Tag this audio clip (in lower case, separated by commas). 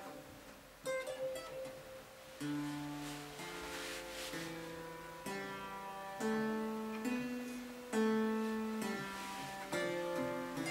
playing harpsichord